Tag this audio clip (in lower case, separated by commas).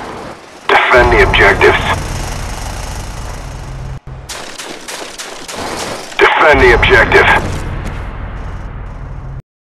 speech